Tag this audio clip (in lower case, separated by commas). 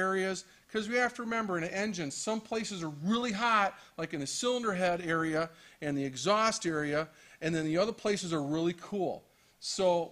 speech